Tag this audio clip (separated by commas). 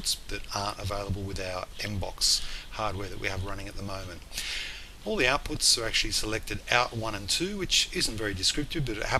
Speech